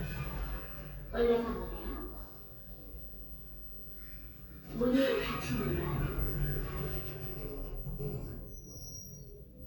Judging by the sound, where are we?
in an elevator